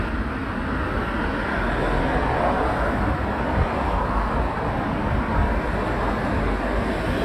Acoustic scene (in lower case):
residential area